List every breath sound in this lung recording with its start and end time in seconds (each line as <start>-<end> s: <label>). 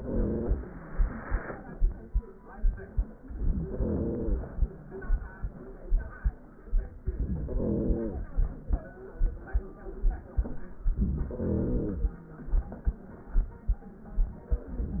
0.00-0.76 s: inhalation
3.28-4.70 s: inhalation
7.03-8.45 s: inhalation
10.76-12.19 s: inhalation